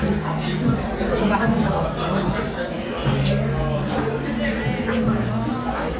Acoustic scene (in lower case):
crowded indoor space